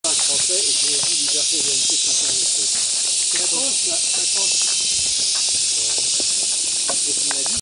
Two men are talking and walking and many insects are chirping